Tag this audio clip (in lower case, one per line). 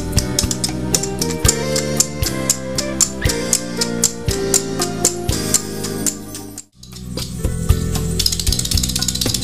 independent music
music